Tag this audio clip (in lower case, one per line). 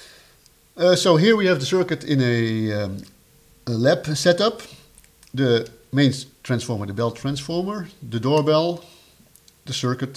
speech